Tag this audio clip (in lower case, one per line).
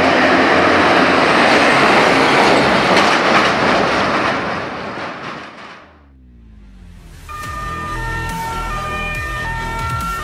fire truck siren